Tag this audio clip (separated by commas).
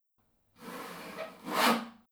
Sawing, Tools